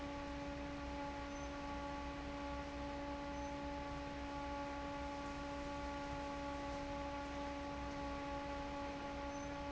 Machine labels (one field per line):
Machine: fan